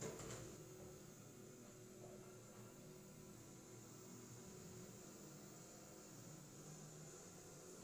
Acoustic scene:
elevator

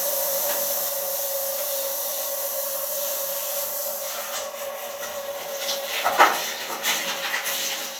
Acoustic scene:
restroom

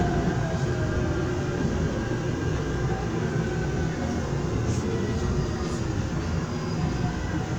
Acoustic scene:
subway train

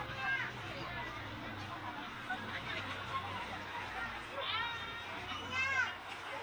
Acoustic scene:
park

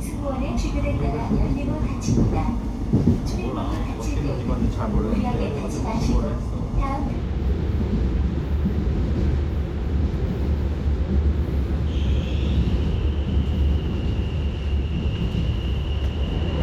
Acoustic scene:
subway train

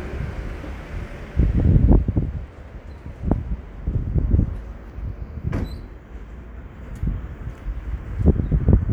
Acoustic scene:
residential area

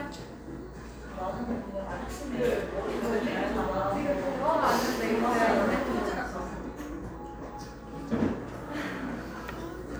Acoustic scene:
cafe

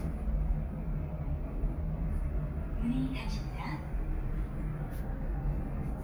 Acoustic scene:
elevator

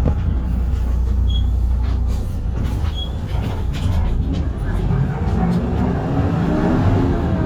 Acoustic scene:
bus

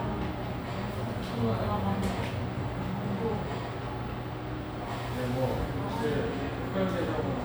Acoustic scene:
cafe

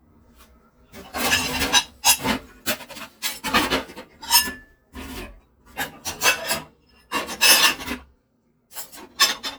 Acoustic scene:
kitchen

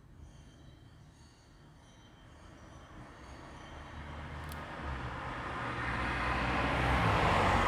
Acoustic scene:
street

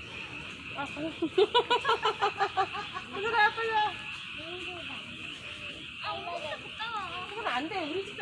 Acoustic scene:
park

